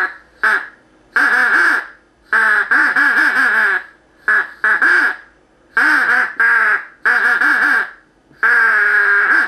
Duck quaking loudly